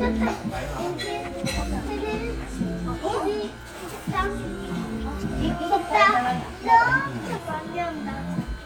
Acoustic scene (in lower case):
crowded indoor space